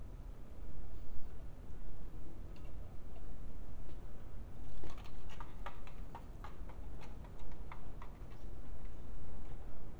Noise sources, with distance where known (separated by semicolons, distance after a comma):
background noise